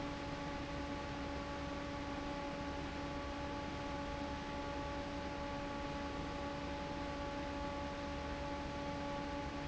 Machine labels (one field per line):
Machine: fan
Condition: normal